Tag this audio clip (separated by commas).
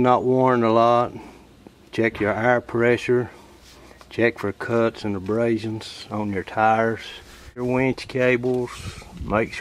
Speech